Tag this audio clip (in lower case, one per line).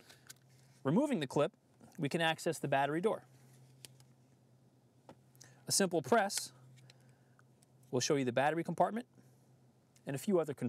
speech